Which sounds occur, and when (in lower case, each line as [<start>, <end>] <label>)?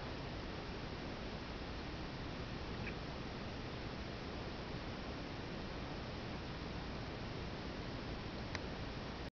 [0.00, 9.29] mechanisms
[2.66, 2.90] mouse
[8.48, 8.61] tick